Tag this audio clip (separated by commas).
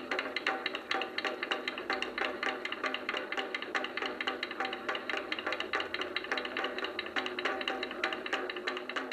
Wood block, Music, Percussion